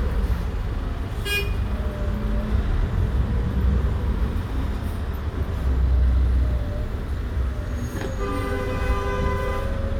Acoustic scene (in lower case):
bus